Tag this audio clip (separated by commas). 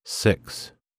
Speech, Human voice